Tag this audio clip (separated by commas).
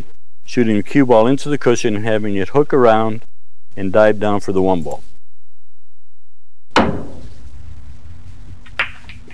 Speech, inside a small room